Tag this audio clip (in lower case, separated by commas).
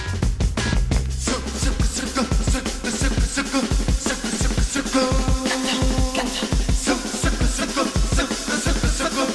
music